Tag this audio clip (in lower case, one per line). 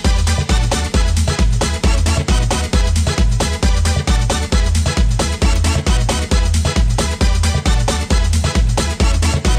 techno
music